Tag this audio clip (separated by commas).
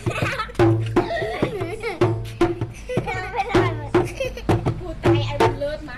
Drum, Human voice, Music, Laughter, Percussion, Musical instrument